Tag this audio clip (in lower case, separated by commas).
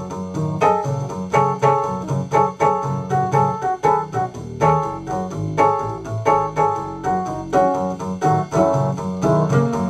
blues, keyboard (musical), music, jazz